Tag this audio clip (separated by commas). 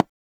Tick